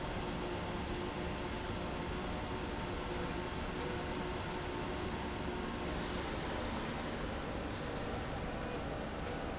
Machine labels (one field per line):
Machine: slide rail